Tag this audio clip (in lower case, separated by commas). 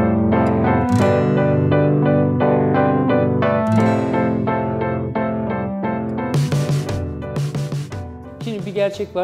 speech, music